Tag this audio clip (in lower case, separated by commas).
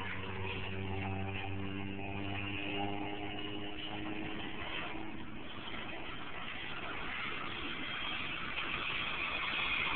aircraft, vehicle